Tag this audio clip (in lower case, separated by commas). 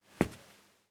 walk